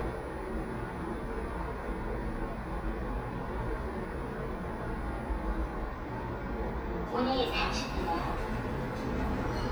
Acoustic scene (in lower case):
elevator